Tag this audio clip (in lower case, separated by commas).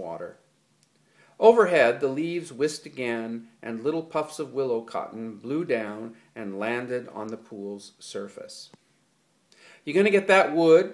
speech